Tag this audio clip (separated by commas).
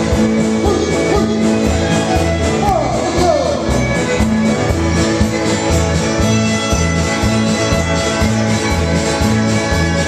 Musical instrument, Music, fiddle